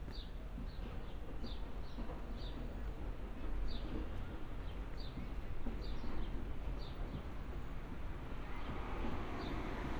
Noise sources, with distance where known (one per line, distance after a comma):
background noise